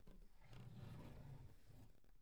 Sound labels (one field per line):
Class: drawer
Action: opening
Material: wooden